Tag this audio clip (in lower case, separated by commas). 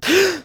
respiratory sounds, gasp, breathing